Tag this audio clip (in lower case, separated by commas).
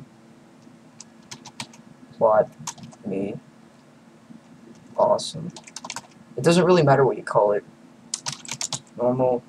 typing, speech